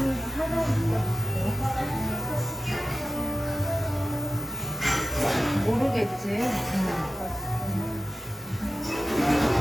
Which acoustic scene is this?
cafe